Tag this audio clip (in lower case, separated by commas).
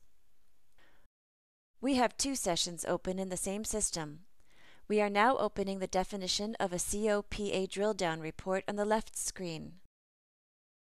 speech